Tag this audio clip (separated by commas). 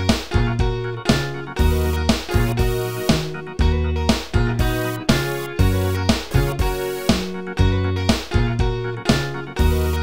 Music